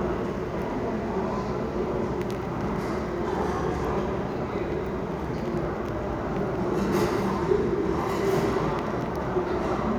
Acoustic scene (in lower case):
restaurant